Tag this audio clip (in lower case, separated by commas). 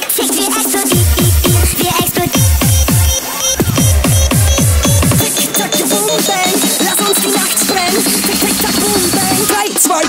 music